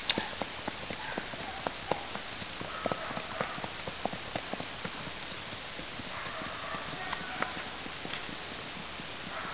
The wind is blowing, a horse is trotting, and dogs are barking in the background